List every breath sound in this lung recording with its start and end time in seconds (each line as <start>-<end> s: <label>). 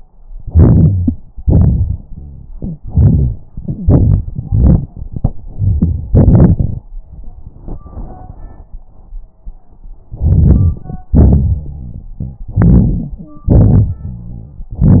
0.39-1.13 s: inhalation
1.41-2.53 s: exhalation
2.52-3.41 s: inhalation
2.52-3.41 s: wheeze
3.54-4.38 s: exhalation
4.37-4.88 s: inhalation
4.87-5.46 s: exhalation
5.48-6.07 s: inhalation
6.10-6.87 s: exhalation
10.11-11.08 s: inhalation
11.13-12.41 s: exhalation
11.13-12.41 s: wheeze
12.43-13.25 s: inhalation
13.24-13.51 s: wheeze
13.48-14.60 s: exhalation
14.03-14.60 s: wheeze